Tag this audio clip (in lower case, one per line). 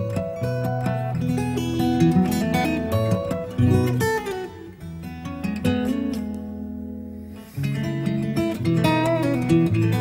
musical instrument
music
guitar
strum
acoustic guitar
plucked string instrument